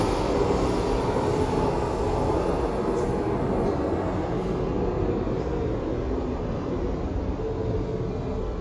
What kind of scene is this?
subway station